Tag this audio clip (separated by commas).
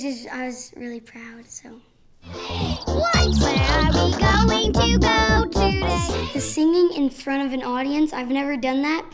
Music, Speech